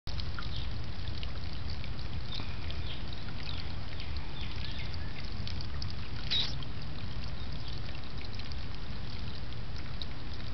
Water gurgling and birds chirping in the background